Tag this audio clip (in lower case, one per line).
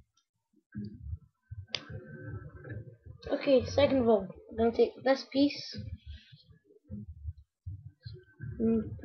speech